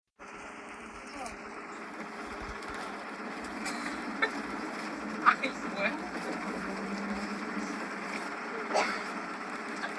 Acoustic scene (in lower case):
bus